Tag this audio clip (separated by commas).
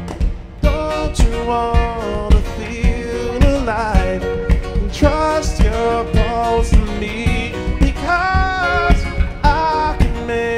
Music